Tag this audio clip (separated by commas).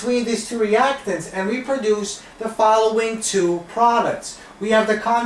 Speech